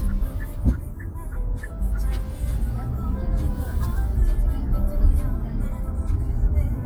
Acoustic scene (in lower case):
car